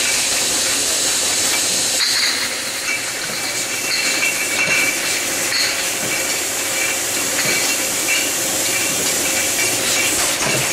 Water sprayed as glass bottles clink together